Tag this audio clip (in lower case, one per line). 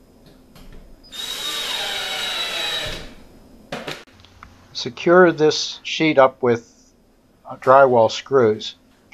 speech
drill
inside a large room or hall